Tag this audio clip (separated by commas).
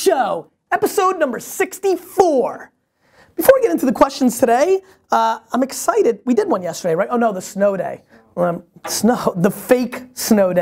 Speech